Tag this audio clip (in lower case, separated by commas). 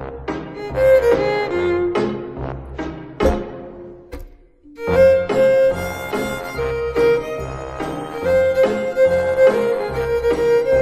fiddle, musical instrument, music